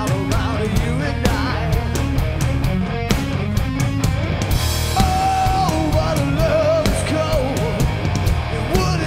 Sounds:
music

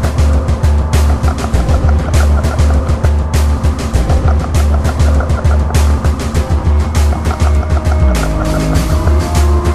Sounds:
music

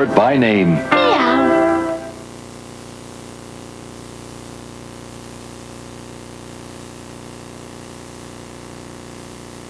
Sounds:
speech
music

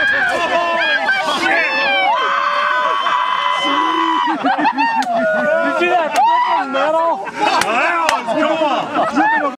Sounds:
speech

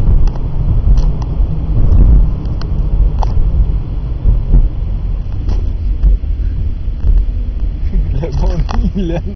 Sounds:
car
vehicle
car passing by
motor vehicle (road)
speech

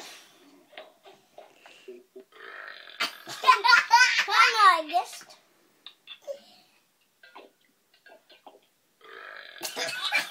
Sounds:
child speech
speech

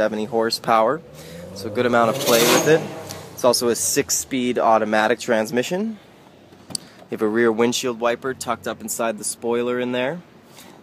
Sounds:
speech

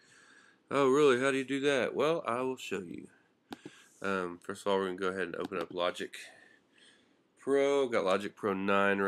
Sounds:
speech

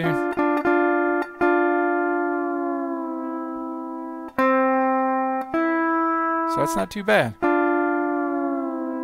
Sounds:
music
bowed string instrument
musical instrument
plucked string instrument
slide guitar

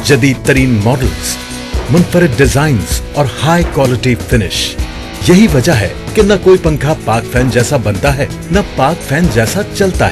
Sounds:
music
speech

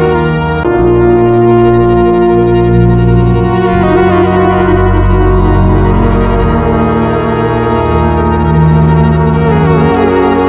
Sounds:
music

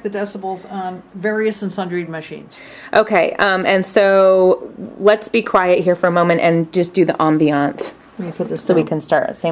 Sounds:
speech

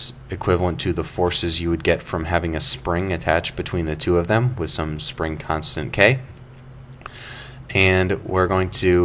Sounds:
speech

